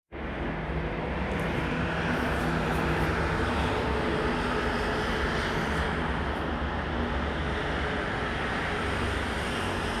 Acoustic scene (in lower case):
street